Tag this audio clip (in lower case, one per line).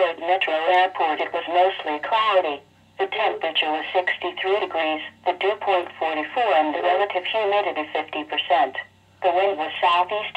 speech